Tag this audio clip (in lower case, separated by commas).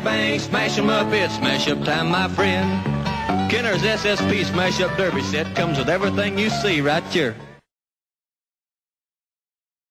speech, music